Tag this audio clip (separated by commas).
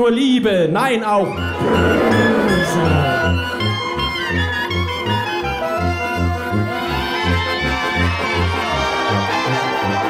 Speech, Music